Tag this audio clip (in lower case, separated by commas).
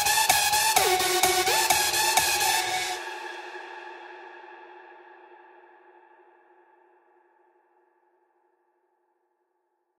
music, house music, electronic music